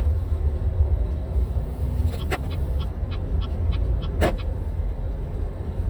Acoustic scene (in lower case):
car